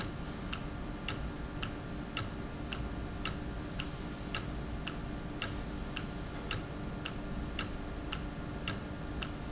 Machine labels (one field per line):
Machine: valve